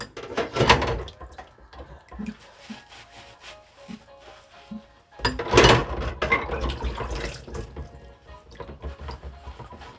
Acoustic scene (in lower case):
kitchen